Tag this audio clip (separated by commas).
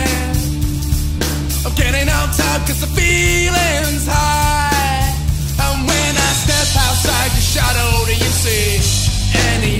Punk rock, Singing, Music